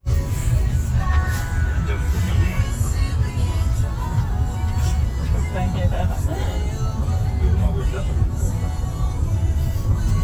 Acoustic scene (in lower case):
car